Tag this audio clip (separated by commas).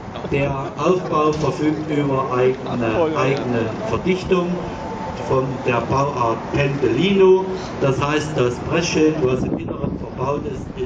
Speech